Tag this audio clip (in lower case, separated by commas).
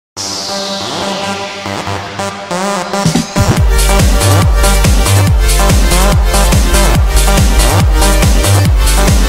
music, electronic dance music